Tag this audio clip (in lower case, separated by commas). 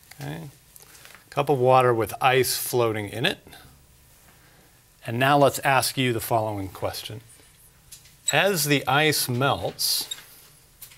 speech